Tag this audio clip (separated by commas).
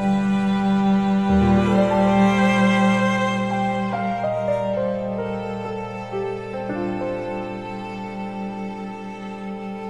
fiddle, Music, Musical instrument